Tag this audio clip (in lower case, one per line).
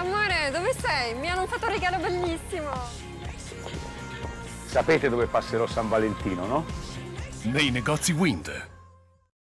music
speech